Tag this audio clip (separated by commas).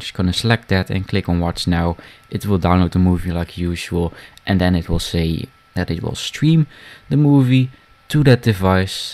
Speech